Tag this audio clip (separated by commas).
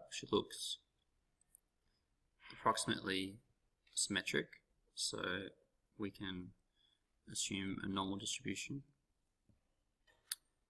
Speech